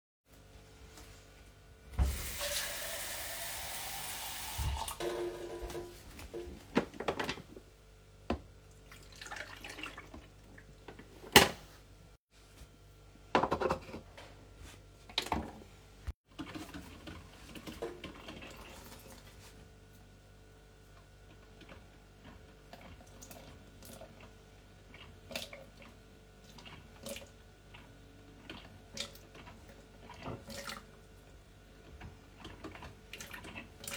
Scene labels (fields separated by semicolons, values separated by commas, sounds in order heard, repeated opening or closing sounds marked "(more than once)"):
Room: kitchen; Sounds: running water, coffee machine